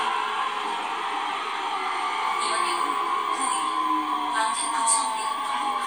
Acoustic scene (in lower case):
subway train